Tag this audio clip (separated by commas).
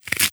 home sounds